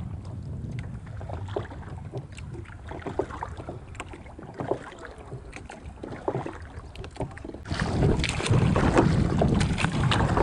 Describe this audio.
Sound of rowing boat and flowing water